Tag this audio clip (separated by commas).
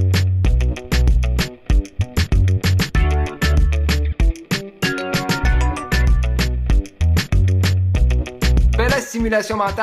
Speech, Music